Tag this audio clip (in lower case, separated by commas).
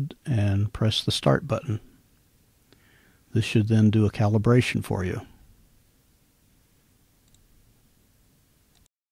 speech